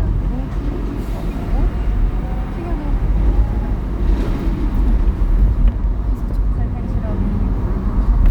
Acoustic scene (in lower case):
car